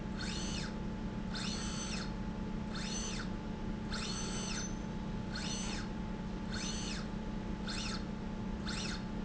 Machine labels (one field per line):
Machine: slide rail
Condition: normal